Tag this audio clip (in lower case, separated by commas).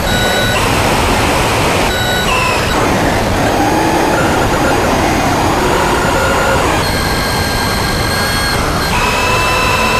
cacophony, white noise